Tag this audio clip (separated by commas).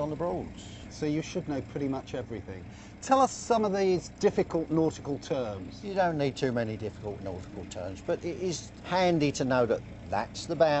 Vehicle, Speech